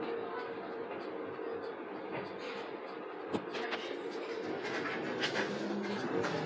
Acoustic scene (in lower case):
bus